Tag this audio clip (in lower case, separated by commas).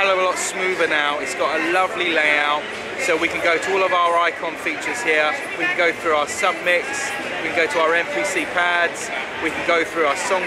speech